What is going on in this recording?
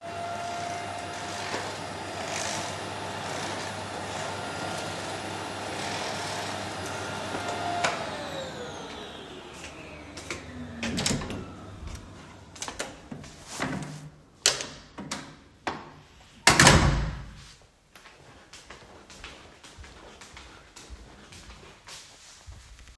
I was vacuuming. When I finished vacuuming, I opened the kitchen door, walked out of kitchen, closed the door and went to my room.